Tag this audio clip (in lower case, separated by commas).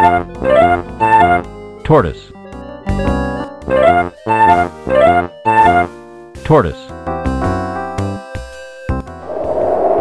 music, speech